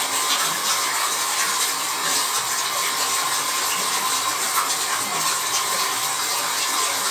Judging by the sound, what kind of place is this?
restroom